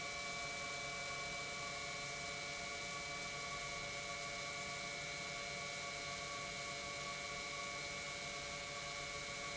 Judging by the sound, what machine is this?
pump